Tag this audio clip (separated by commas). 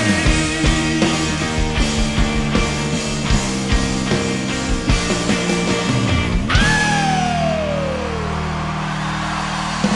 Heavy metal, Rock music, Music, Progressive rock